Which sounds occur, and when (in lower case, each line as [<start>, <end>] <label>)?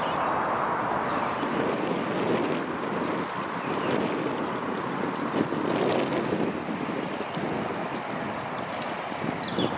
[0.00, 9.75] stream
[0.00, 9.75] wind noise (microphone)
[0.03, 0.13] tweet
[2.85, 2.96] tweet
[3.07, 3.18] tweet
[3.55, 3.72] tweet
[3.77, 3.88] tweet
[4.93, 5.27] tweet
[6.09, 6.20] tweet
[6.63, 6.75] tweet
[7.17, 7.29] tweet
[7.40, 7.59] tweet
[8.66, 9.04] tweet
[9.42, 9.50] tweet
[9.57, 9.66] tweet